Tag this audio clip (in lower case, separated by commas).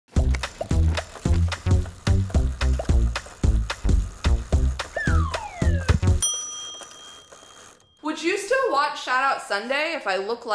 speech, music